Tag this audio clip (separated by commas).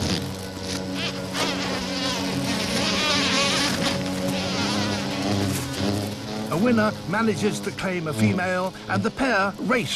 bee or wasp, Fly, Insect